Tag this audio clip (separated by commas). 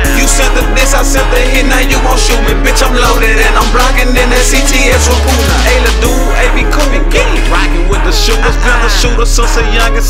Music